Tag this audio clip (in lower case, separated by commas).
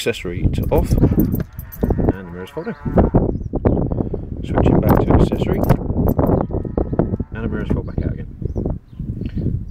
speech